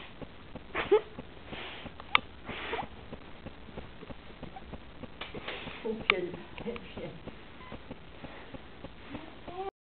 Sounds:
speech

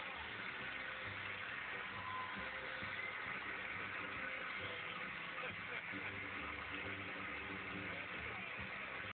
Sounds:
music
speech

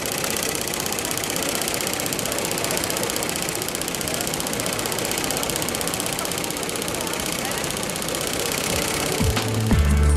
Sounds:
using sewing machines
sewing machine
speech
music

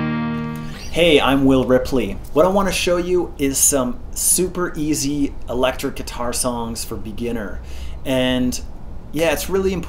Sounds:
electric guitar
music
speech

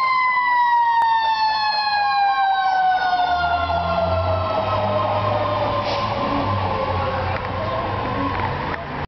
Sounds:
car
vehicle
accelerating

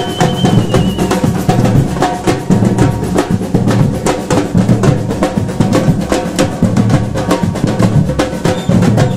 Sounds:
percussion
music

